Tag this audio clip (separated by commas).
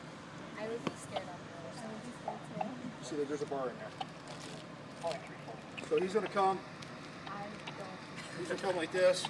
Speech